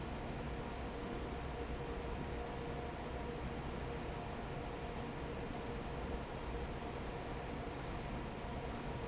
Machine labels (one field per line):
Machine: fan